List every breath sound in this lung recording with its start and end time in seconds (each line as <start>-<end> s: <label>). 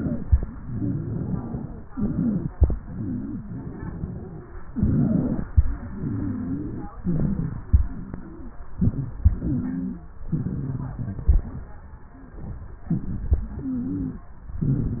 0.00-0.39 s: inhalation
0.00-0.39 s: crackles
0.44-1.81 s: exhalation
0.44-1.81 s: wheeze
1.91-2.47 s: inhalation
1.91-2.47 s: wheeze
2.88-4.48 s: exhalation
2.88-4.48 s: wheeze
4.74-5.44 s: inhalation
4.74-5.44 s: wheeze
5.74-6.90 s: exhalation
5.96-6.90 s: wheeze
7.02-7.65 s: inhalation
7.02-7.65 s: wheeze
7.76-8.61 s: exhalation
7.76-8.61 s: wheeze
8.82-9.21 s: inhalation
8.82-9.21 s: wheeze
9.27-10.11 s: exhalation
9.27-10.11 s: wheeze
10.31-11.26 s: inhalation
10.31-11.26 s: crackles
12.88-13.50 s: inhalation
12.88-13.50 s: crackles
13.54-14.28 s: exhalation
13.54-14.28 s: wheeze
14.60-15.00 s: inhalation
14.60-15.00 s: crackles